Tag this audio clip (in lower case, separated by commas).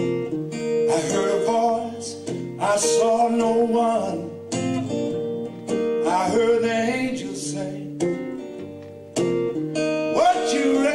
music, male singing